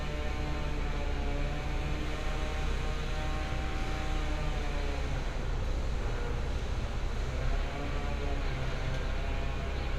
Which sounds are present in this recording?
chainsaw